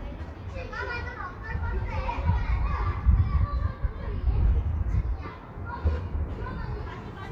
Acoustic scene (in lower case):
residential area